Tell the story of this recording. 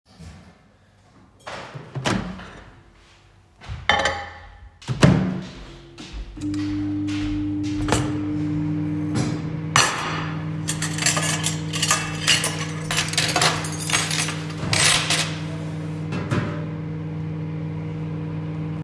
I opened the microwave and put a plate inside. While the microwave was running, I moved cutlery from a pan to the counter. Simultaneously, another person opened and closed the fridge while walking in the kitchen.